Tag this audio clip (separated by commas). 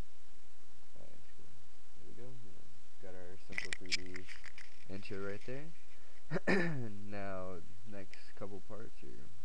Speech